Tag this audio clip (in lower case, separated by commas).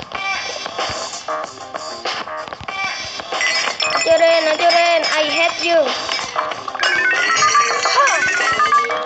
music, speech